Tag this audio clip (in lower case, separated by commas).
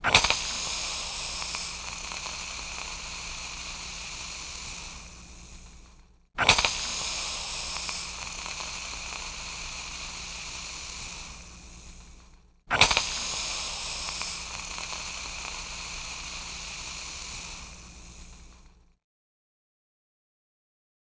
hiss, water